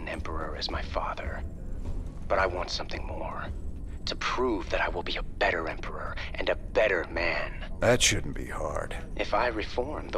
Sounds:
Speech

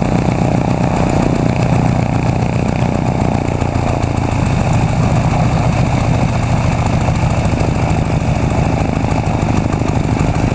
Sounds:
Heavy engine (low frequency)

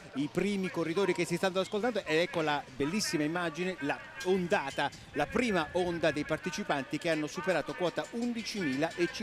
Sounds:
Run, outside, urban or man-made, Speech

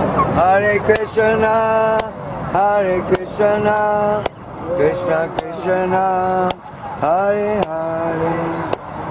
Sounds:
Chicken, Speech, Cluck

